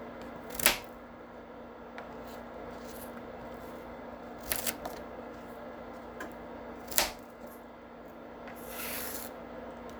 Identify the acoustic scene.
kitchen